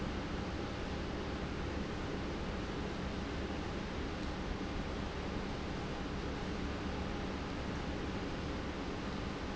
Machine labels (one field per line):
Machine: pump